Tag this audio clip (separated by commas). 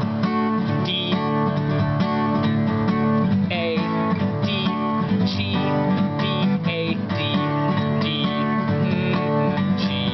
Music, Male singing